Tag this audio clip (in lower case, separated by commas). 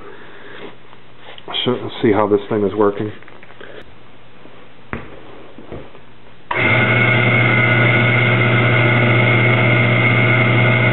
tools, speech